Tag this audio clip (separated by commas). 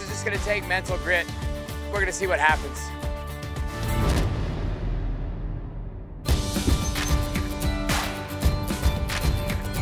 Music, Speech